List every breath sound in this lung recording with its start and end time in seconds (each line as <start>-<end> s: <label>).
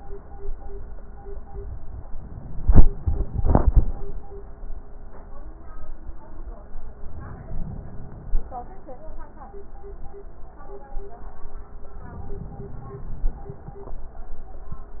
7.05-8.55 s: inhalation
12.02-13.52 s: inhalation